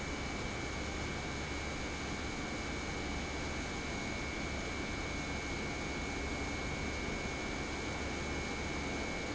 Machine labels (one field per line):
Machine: pump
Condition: normal